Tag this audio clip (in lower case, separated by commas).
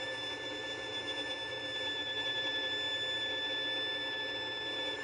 bowed string instrument, musical instrument, music